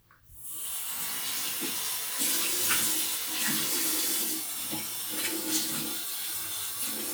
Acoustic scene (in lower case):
restroom